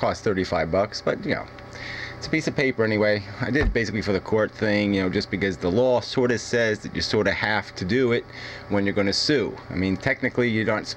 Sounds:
Speech

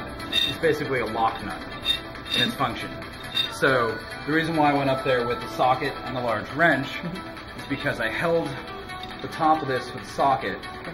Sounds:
Speech, Music

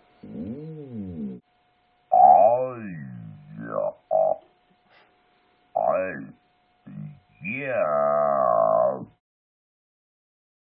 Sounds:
Speech synthesizer, Speech

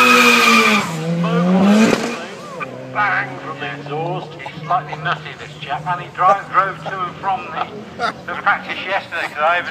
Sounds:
Vehicle, Car, Speech

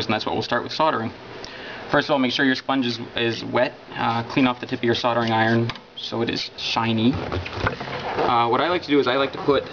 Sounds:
inside a small room, Speech

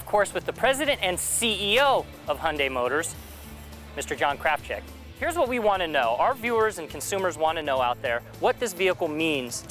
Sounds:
Music, Speech

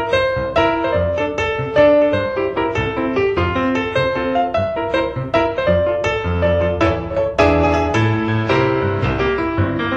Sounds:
Music

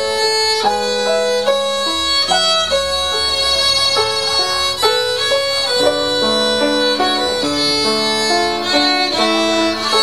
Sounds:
Music, fiddle, Musical instrument

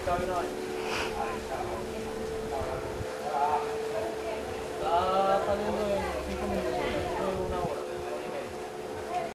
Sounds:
Speech

